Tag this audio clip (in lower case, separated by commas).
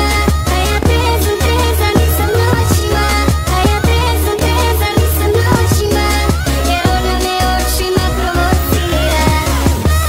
electronic music, music